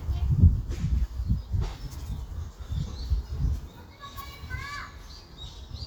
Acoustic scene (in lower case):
park